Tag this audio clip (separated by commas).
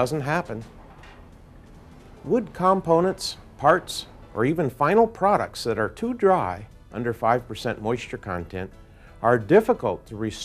Speech